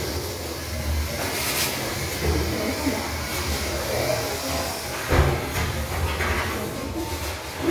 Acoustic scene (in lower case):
restroom